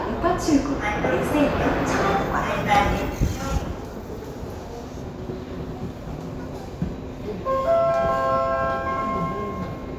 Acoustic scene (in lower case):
subway station